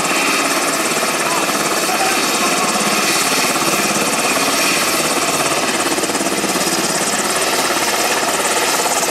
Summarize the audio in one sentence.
The propeller from the helicopter spins and a person speaks but can be barely heard over the helicopter propellers